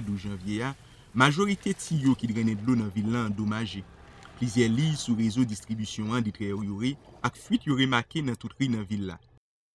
A man is speaking